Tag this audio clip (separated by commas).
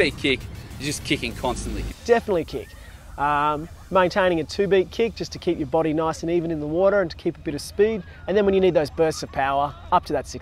Music, Speech